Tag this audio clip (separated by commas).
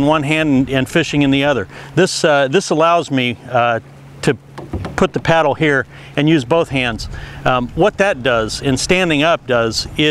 Speech, Rowboat